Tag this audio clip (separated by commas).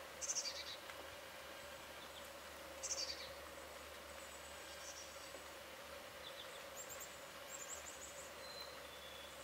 black capped chickadee calling